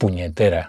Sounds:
Speech, Male speech, Human voice

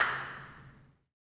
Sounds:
Clapping, Hands

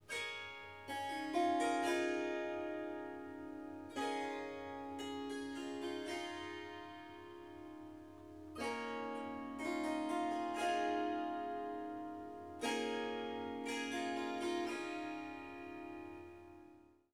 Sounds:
Harp, Musical instrument, Music

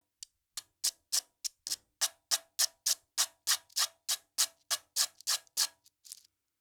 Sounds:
Tools

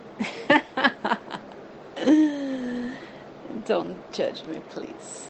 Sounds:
Human voice, Laughter

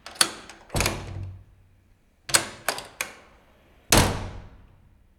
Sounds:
Slam, Door, home sounds

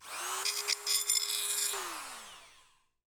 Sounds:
Tools

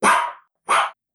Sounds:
Dog, Bark, Domestic animals, Animal

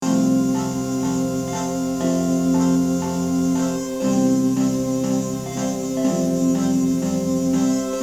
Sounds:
Music, Keyboard (musical), Musical instrument, Piano

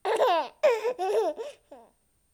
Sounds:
Laughter, Human voice

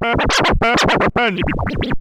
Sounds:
Musical instrument, Music, Scratching (performance technique)

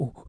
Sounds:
Respiratory sounds, Breathing

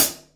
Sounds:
Musical instrument, Music, Cymbal, Percussion, Hi-hat

